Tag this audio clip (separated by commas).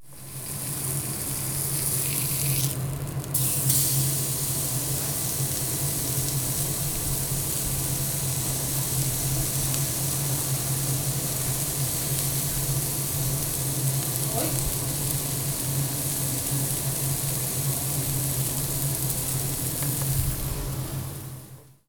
Frying (food), Domestic sounds